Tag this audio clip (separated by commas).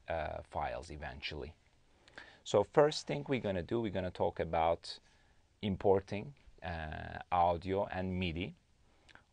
Speech